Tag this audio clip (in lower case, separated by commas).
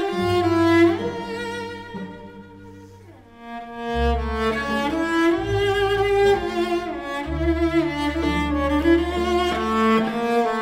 cello, musical instrument, fiddle, music, orchestra